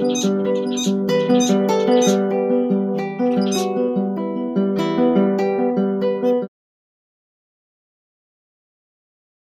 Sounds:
Strum, Music, Acoustic guitar, Musical instrument, Guitar, Plucked string instrument

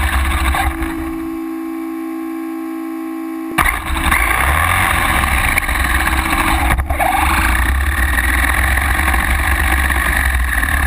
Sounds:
Truck, Vehicle

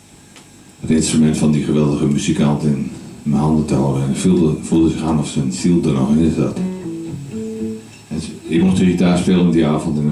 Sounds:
Music, Guitar, Musical instrument, Electric guitar, Plucked string instrument, Speech

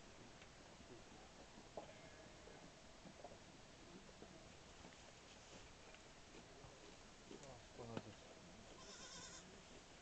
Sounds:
Animal, Goat

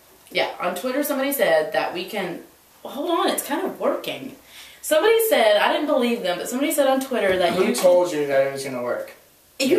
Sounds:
Speech

